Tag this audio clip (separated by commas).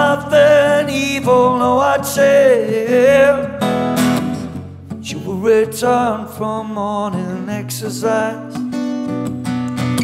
Music